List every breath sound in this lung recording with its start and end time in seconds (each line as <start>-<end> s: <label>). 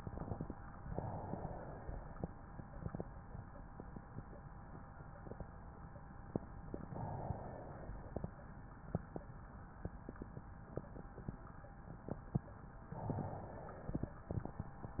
0.81-2.29 s: inhalation
6.79-8.27 s: inhalation
12.83-14.30 s: inhalation